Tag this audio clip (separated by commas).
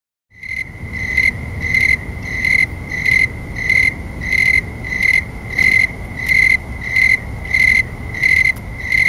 cricket chirping